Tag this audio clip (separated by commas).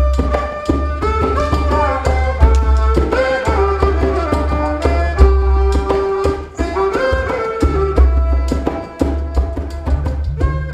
Music, Classical music